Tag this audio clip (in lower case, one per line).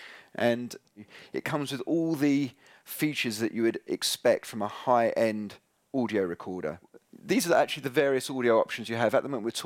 speech